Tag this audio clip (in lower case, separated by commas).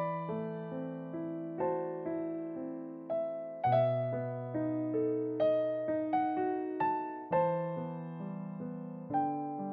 music, electric piano